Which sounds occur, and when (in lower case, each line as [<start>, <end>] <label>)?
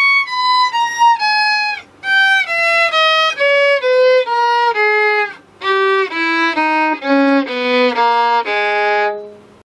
[0.00, 1.86] music
[0.00, 9.64] background noise
[2.03, 5.41] music
[5.61, 9.47] music